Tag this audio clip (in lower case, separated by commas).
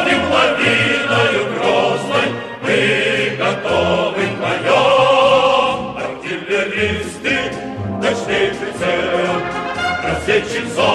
music